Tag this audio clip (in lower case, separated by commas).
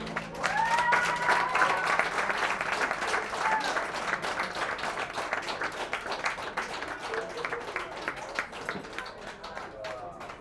human group actions, applause